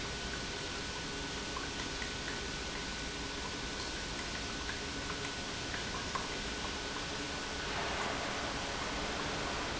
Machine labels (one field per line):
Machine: pump